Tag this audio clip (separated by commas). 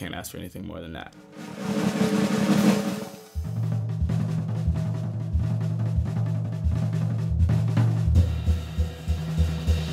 Musical instrument, Speech, Bass drum, Drum roll, Music, Snare drum, Drum, Percussion, Hi-hat, Cymbal, Drum kit